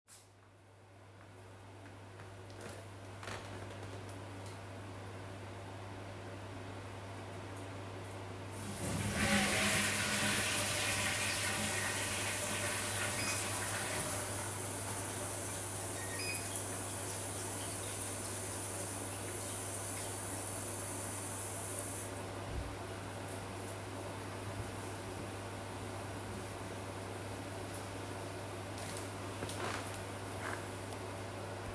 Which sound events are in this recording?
microwave, footsteps, toilet flushing, running water